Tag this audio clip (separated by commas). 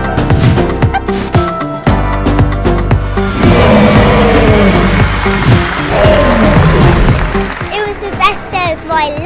dinosaurs bellowing